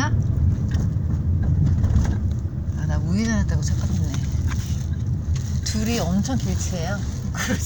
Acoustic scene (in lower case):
car